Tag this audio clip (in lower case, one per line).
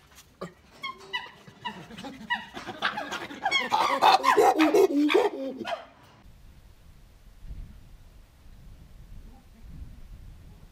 chimpanzee pant-hooting